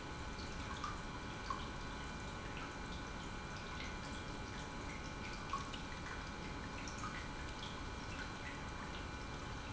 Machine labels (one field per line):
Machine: pump